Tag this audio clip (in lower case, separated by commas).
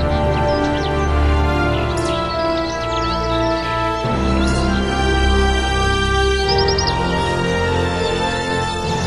music